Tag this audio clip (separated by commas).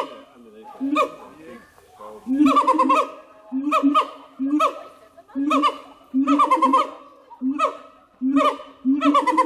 gibbon howling